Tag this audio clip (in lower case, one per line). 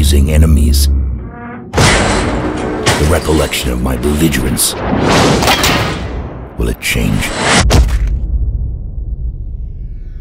speech
music